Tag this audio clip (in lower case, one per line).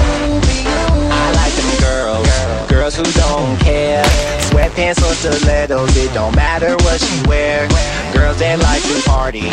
music
rock and roll